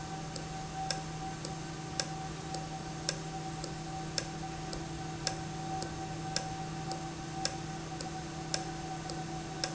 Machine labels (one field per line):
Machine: valve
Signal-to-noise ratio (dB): -6 dB